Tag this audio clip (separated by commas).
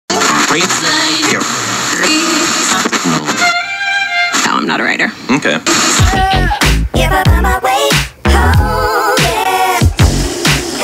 Speech, Music